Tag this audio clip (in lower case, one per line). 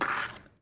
vehicle
skateboard